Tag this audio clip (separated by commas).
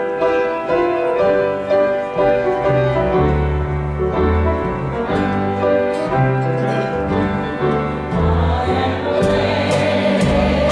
Singing, Wedding music, Classical music